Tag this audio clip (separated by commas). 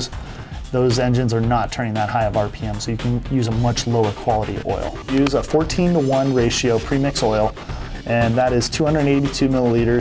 Music, Speech